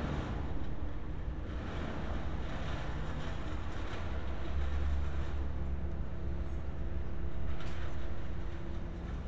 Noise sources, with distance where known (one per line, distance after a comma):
engine of unclear size